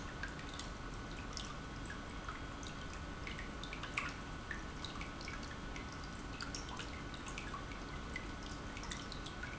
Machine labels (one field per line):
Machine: pump